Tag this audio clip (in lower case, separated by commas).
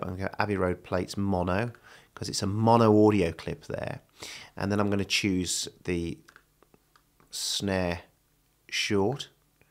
speech